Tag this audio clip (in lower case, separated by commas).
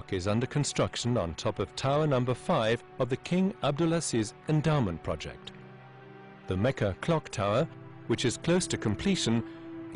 speech, music